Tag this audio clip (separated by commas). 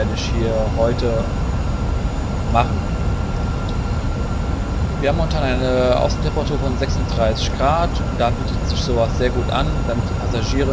Speech, Engine, Heavy engine (low frequency), Vehicle